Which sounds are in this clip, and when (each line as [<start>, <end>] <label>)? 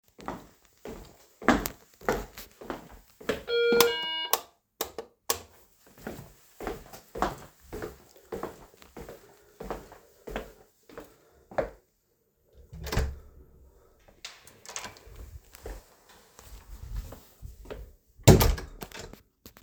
[0.00, 3.75] footsteps
[3.23, 4.33] bell ringing
[3.78, 5.50] light switch
[5.87, 11.81] footsteps
[12.65, 15.14] door
[15.53, 18.10] footsteps
[18.20, 19.52] door